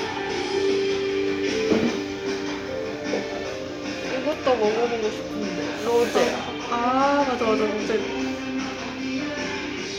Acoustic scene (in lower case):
restaurant